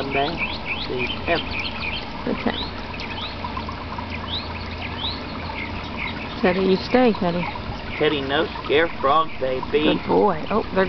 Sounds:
speech, animal

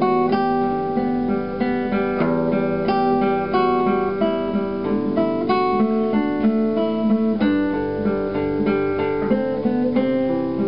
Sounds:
musical instrument, playing acoustic guitar, guitar, acoustic guitar, strum, music, plucked string instrument

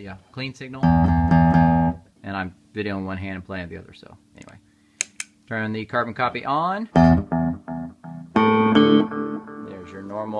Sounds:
music, speech

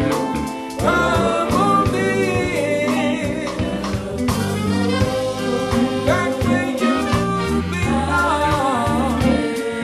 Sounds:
musical instrument, music, singing

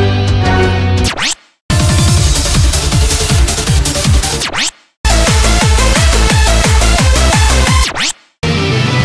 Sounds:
music

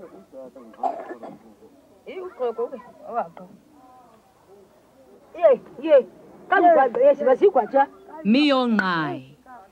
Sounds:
outside, rural or natural, speech

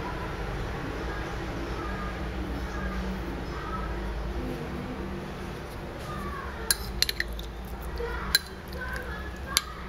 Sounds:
speech

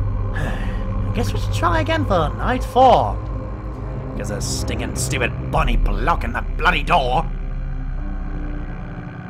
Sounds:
music, speech

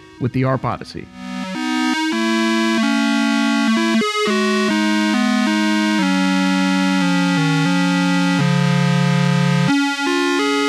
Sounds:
playing synthesizer

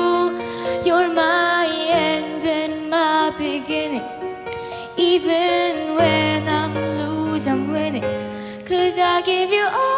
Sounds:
child singing

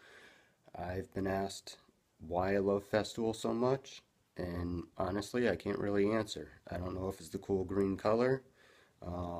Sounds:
speech

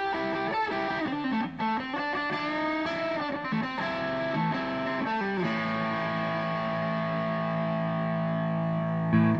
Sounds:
music

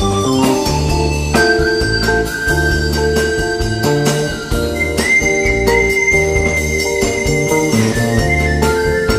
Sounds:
musical instrument, percussion, bowed string instrument, music, double bass

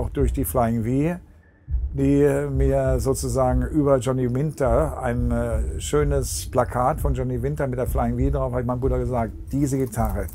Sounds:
speech

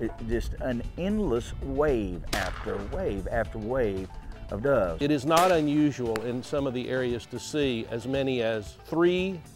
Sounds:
music, speech

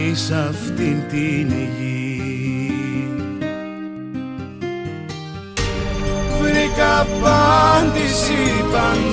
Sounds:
gospel music, music, soul music

